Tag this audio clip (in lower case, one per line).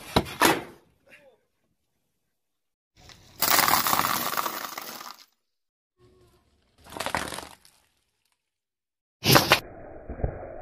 squishing water